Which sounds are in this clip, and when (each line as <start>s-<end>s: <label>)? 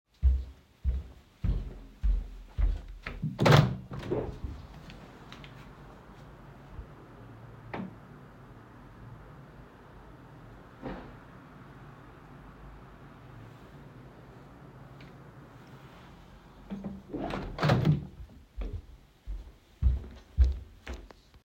0.0s-3.3s: footsteps
3.3s-4.6s: window
16.6s-18.3s: window
18.5s-21.2s: footsteps